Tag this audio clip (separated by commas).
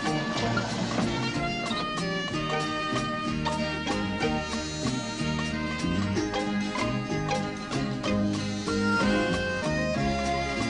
Music